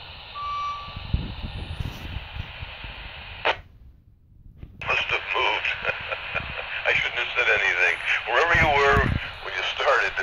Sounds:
police radio chatter

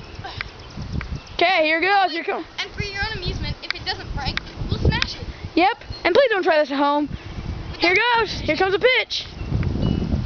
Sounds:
speech

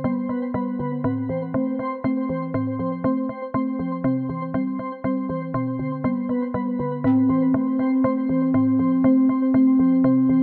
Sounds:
music

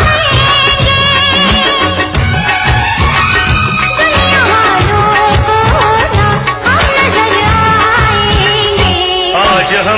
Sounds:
music
music of bollywood

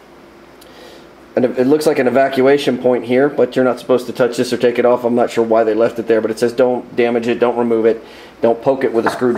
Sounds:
speech
inside a small room

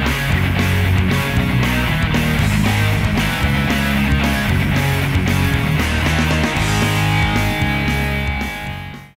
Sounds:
music

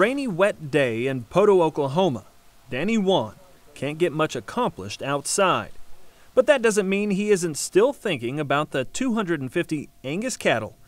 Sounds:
speech

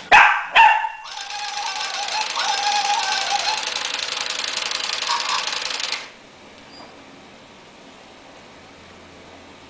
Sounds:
inside a small room
domestic animals
dog
animal
jackhammer

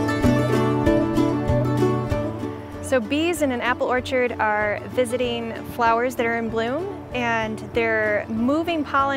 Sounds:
music
speech

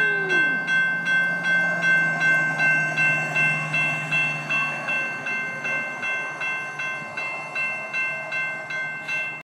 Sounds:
car
vehicle

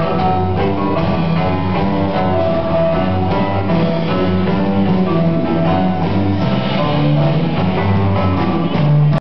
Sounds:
wedding music
music

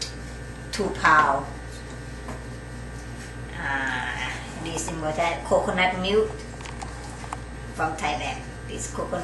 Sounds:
speech

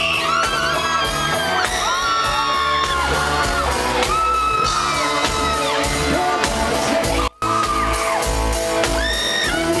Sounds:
singing
bellow
outside, urban or man-made
music

